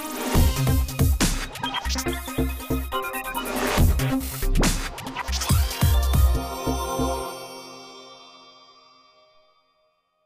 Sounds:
music

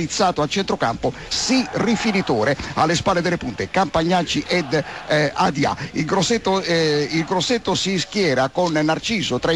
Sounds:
speech

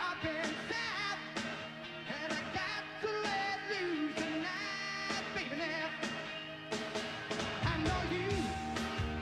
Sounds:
music
male singing

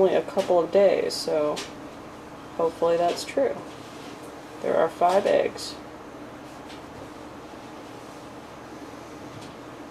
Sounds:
speech
inside a small room

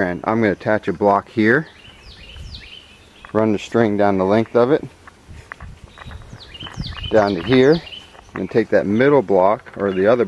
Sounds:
speech

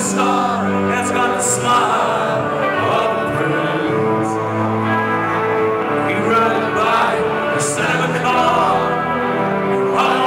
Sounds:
music

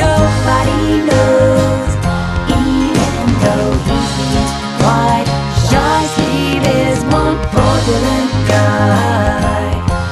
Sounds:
jingle (music)

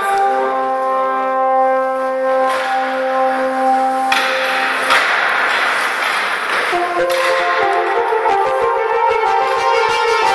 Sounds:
french horn
brass instrument

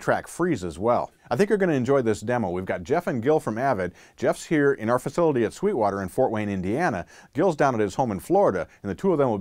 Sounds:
speech

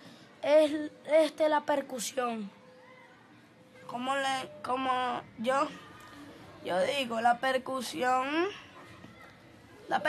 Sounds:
speech

